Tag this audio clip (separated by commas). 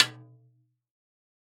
Music, Snare drum, Drum, Musical instrument, Percussion